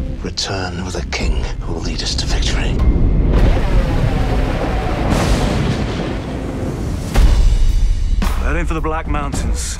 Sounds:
speech, music

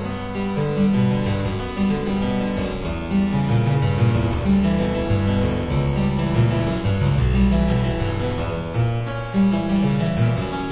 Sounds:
musical instrument, music

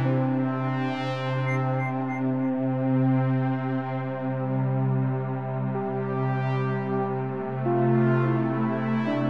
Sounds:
music, synthesizer

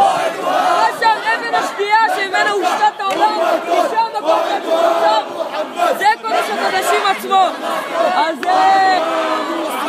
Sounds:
speech, outside, urban or man-made

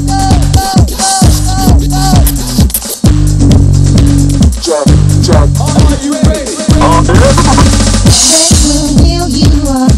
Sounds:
soundtrack music, music, house music

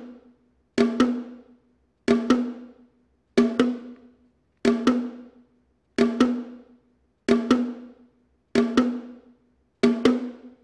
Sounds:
percussion, music

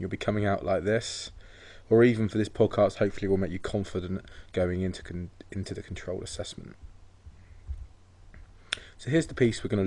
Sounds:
speech

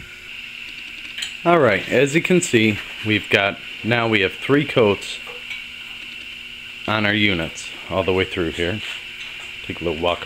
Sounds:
speech

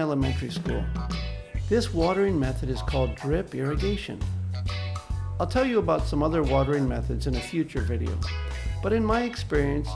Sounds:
speech, music

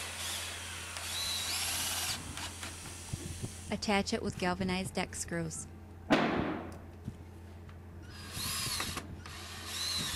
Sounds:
speech

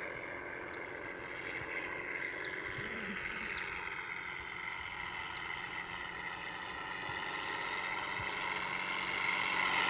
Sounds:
vehicle, fixed-wing aircraft

